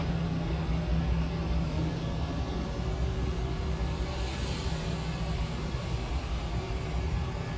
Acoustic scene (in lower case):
street